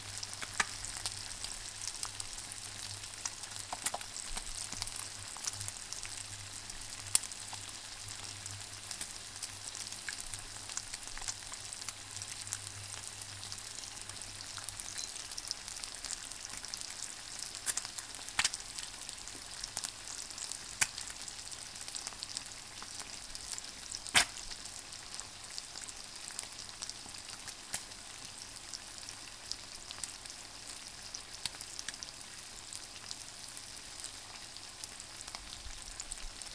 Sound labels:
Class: cooking